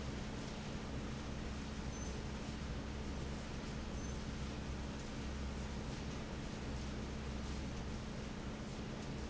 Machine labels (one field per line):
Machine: fan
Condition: normal